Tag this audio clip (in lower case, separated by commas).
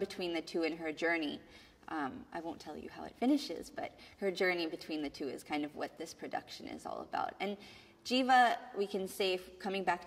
inside a small room, speech